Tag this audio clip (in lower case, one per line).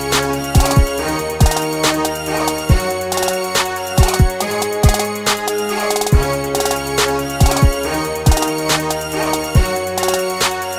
music